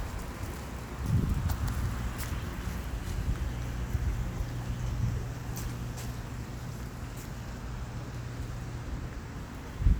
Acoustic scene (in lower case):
residential area